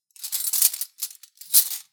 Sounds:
home sounds
silverware

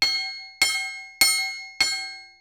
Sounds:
chink
glass

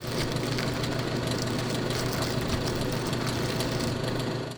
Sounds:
truck
vehicle
motor vehicle (road)

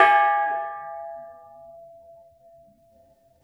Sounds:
gong
percussion
music
musical instrument

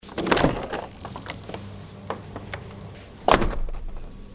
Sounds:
door
domestic sounds
slam

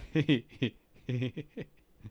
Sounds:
human voice
laughter

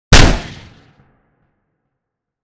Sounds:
gunshot
explosion

